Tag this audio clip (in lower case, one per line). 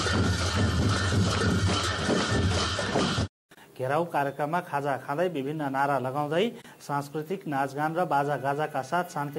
speech